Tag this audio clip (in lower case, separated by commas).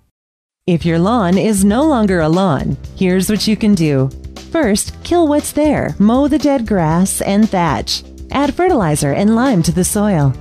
speech, music